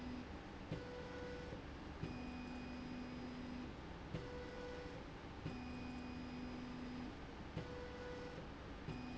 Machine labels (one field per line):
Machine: slide rail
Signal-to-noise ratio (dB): 6 dB